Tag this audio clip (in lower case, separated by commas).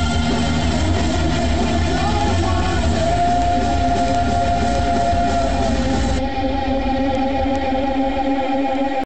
plucked string instrument, music, guitar, strum, electric guitar, musical instrument